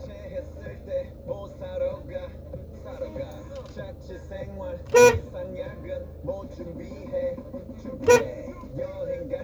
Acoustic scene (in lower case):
car